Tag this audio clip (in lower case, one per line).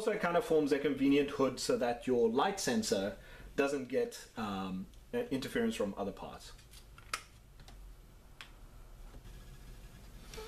inside a small room
speech